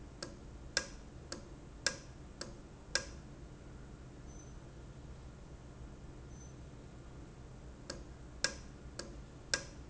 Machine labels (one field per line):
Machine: valve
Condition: normal